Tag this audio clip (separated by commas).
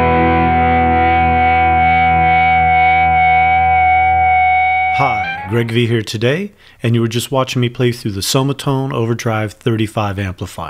Speech, Music